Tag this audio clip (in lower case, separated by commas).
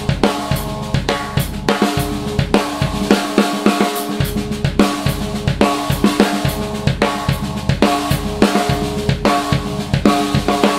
music